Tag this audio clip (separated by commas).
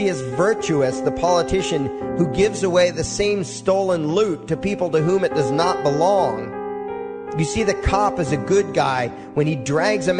Music, Male speech, Speech